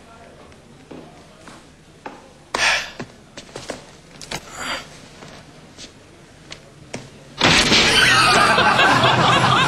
People are talking and one person breaths heavily followed by a loud noise and lots of laughter